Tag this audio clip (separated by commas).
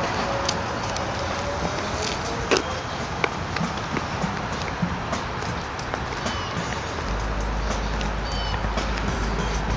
Speech, Music, Walk